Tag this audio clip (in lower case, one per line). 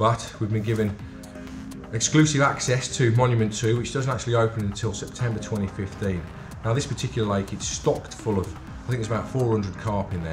speech
music